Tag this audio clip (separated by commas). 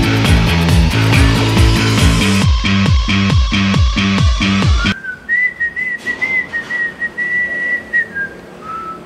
Music